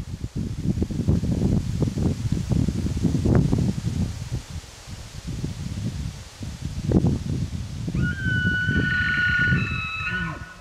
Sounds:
elk bugling

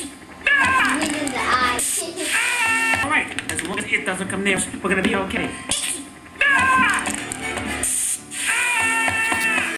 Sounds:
music
speech
spray

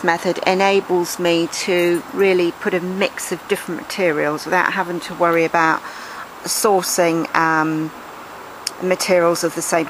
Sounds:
speech

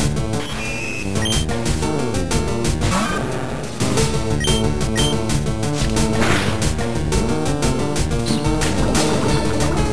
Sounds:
squish

